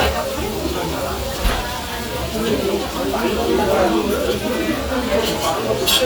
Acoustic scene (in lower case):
restaurant